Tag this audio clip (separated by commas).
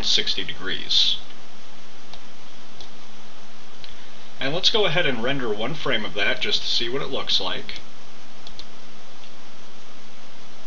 Speech